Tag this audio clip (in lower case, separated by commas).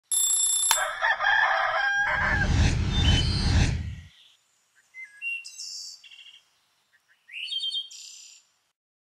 silence